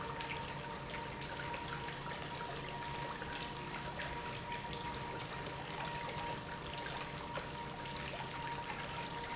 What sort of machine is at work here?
pump